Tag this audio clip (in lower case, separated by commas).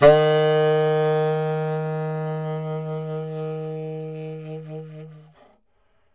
music, musical instrument, wind instrument